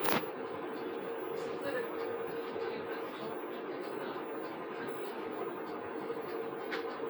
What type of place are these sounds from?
bus